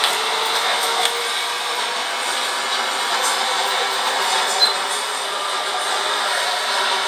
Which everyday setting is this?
subway train